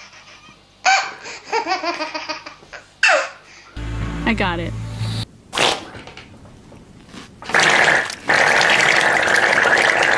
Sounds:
laughter
speech
music

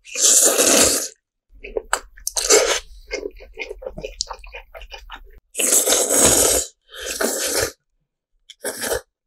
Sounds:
people eating noodle

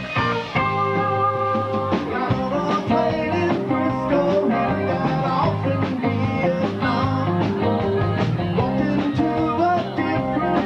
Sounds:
musical instrument
music

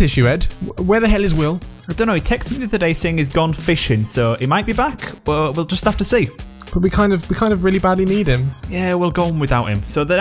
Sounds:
speech
music

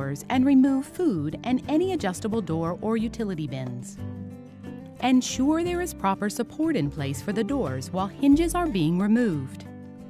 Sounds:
speech
music

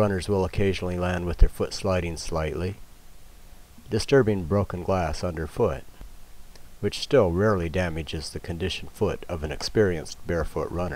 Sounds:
speech

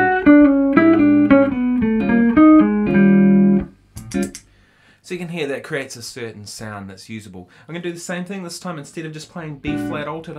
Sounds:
musical instrument
speech
guitar
music
electric guitar
plucked string instrument
inside a small room

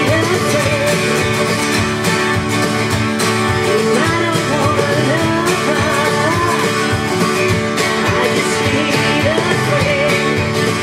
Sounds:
plucked string instrument
musical instrument
electric guitar
music
guitar
strum

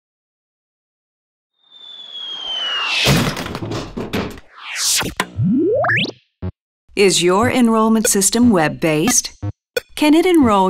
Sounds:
speech
sound effect

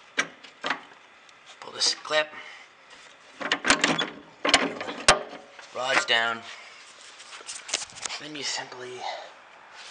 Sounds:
speech

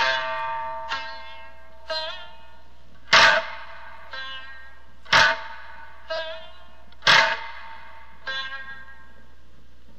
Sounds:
music

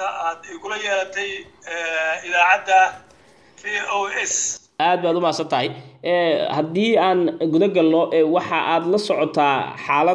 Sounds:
speech

